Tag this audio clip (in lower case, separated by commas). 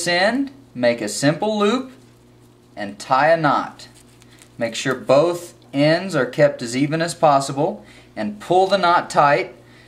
speech